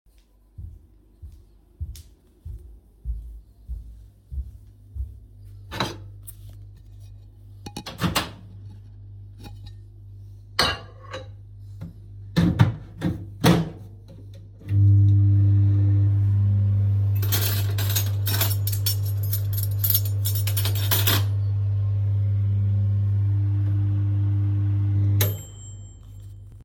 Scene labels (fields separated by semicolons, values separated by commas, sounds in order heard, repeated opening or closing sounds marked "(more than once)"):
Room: kitchen; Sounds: footsteps, cutlery and dishes, microwave